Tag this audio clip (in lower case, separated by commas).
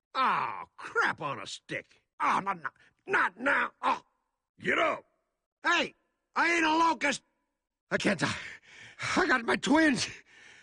speech